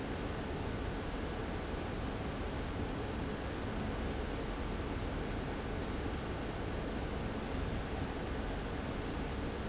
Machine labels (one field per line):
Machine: fan